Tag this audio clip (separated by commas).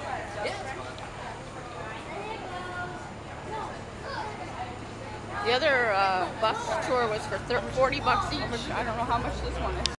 Speech, Vehicle